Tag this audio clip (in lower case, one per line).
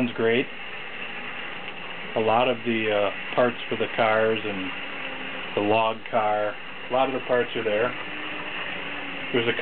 speech